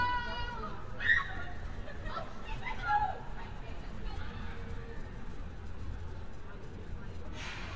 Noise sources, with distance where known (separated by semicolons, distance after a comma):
person or small group shouting, near